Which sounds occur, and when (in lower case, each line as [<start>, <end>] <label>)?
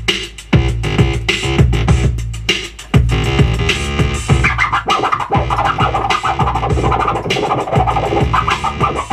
[0.00, 9.12] music
[4.43, 8.28] scratch
[8.38, 9.12] scratch